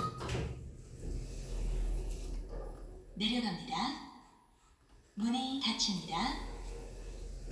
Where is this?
in an elevator